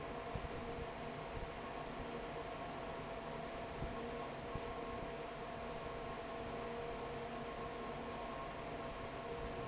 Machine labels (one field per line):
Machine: fan